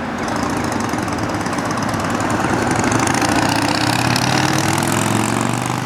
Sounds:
Vehicle, Engine, Motorcycle, Motor vehicle (road)

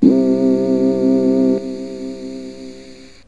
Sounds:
Music, Musical instrument, Keyboard (musical)

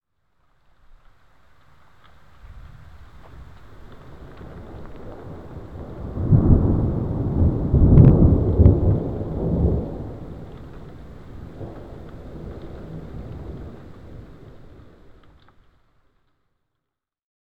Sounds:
Thunder, Thunderstorm

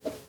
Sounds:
Whoosh

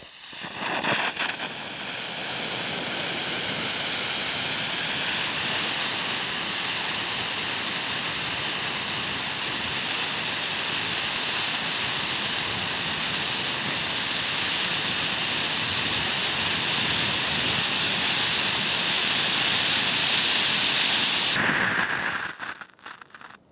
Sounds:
Fire

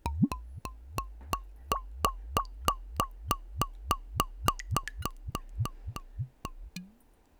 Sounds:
Water, Liquid, Gurgling

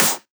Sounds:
Hands, Clapping

